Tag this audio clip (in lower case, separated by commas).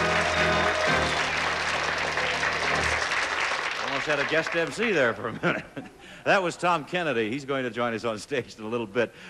speech